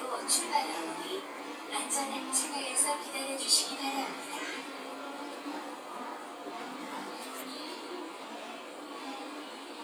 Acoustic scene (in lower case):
subway train